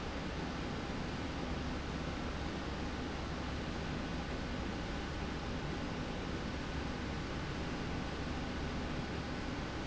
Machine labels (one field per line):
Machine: slide rail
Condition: normal